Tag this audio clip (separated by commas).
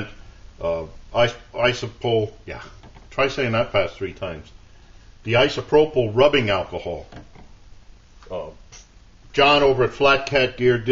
Speech